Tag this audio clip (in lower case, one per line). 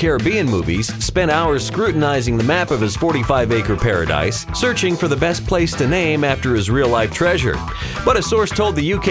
music
speech